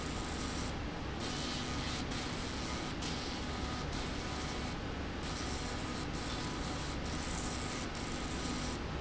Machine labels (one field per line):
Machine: slide rail